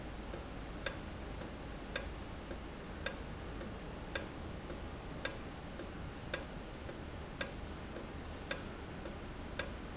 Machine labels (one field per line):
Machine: valve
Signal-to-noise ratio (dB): 0 dB